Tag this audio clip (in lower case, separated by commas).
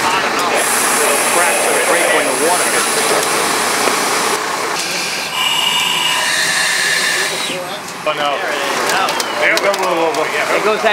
speech